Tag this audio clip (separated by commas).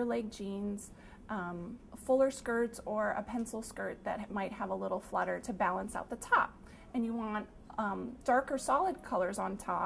Speech, inside a large room or hall